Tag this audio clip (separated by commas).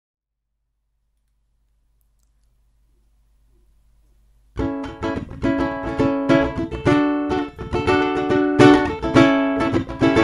playing ukulele